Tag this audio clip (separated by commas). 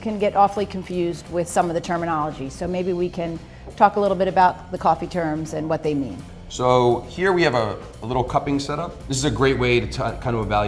Music, Speech